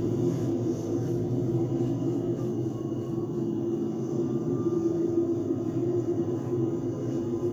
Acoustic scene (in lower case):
bus